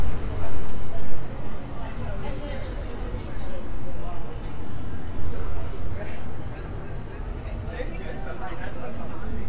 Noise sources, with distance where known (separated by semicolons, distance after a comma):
person or small group talking, near